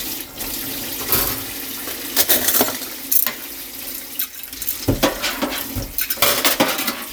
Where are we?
in a kitchen